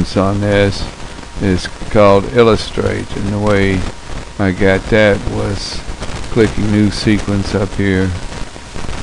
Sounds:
Speech

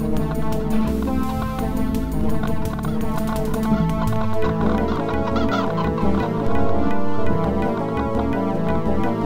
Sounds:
Fowl, Chicken, Cluck

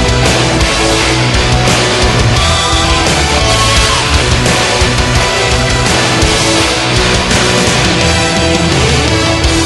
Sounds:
Music

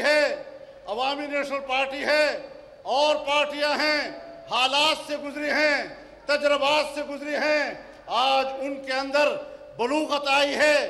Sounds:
Narration, Speech, Male speech

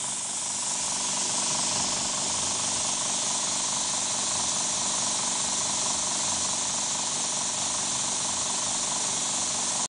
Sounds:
Hiss

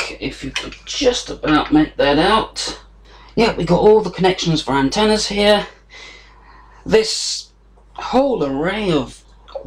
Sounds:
Speech

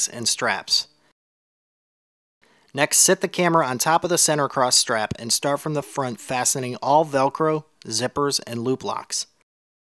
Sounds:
Speech

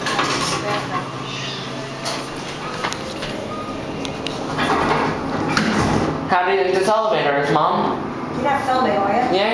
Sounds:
Speech

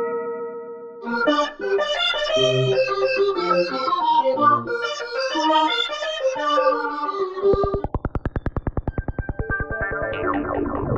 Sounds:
Organ, Electronic organ

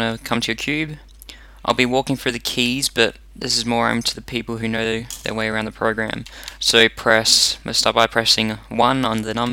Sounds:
Speech

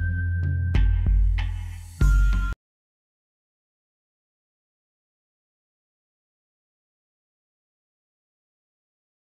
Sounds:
Music

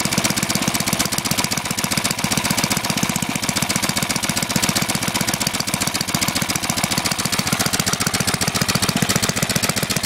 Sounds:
Engine, Idling

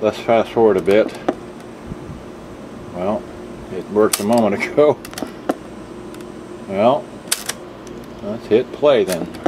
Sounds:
Speech

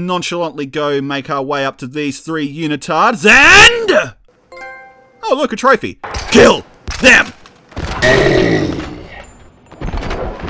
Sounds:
Speech, Music

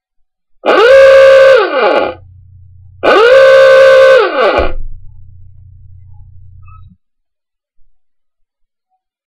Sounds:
honking

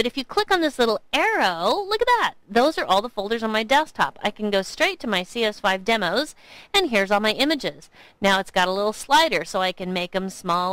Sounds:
Speech

